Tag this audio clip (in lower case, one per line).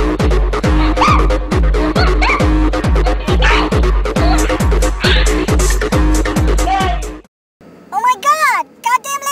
electronic music
music
speech
techno